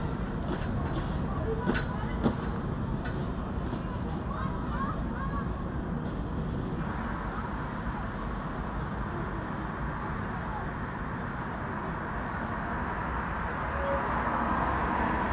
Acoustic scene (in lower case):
street